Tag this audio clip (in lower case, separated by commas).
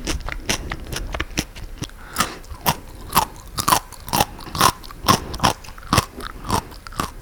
mastication